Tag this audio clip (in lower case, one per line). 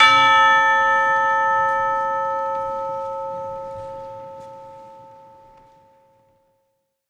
bell
musical instrument
music
percussion
church bell